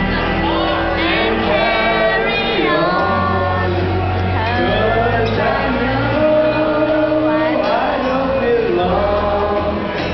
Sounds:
male singing, female singing, music

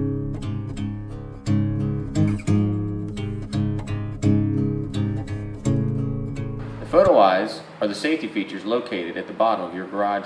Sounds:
music, speech

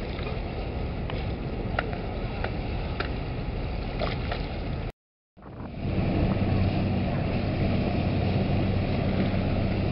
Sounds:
water vehicle, vehicle, speedboat acceleration, speedboat

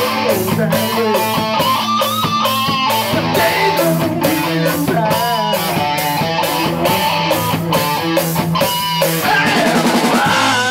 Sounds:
guitar, musical instrument, plucked string instrument, electric guitar, strum, music

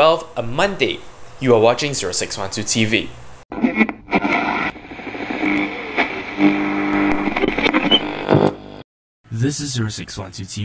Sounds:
speech, radio

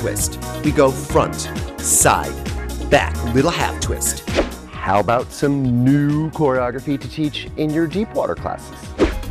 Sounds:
music, speech

